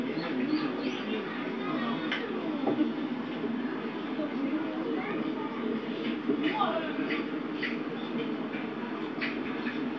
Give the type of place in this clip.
park